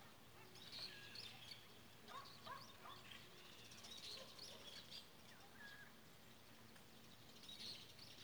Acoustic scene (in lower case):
park